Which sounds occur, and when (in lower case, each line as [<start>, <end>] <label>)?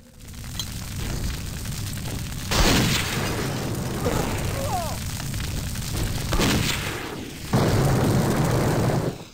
[0.00, 9.33] video game sound
[4.49, 4.95] human voice
[6.28, 6.82] gunshot